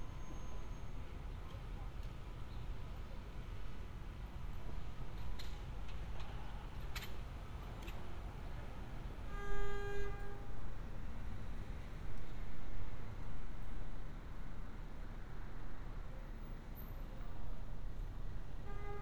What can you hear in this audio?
background noise